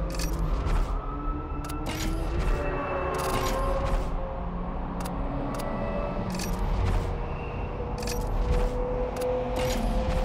Race car engines are running and fading, clicking is occurring, and tires are screeching